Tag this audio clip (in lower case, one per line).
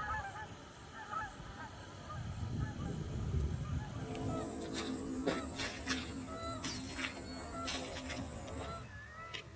duck
quack
animal